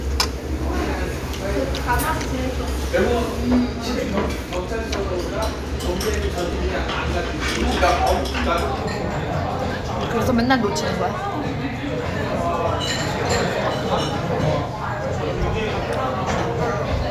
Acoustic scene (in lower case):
restaurant